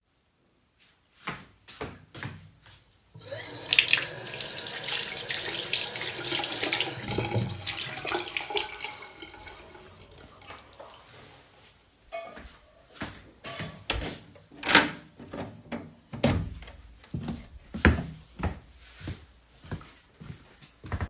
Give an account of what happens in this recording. I stepped to the sink, cleaned my hands, then,I turned off the light. Finally, while I was opening the door and stepping out, my friend was arranging pots at the kitchen.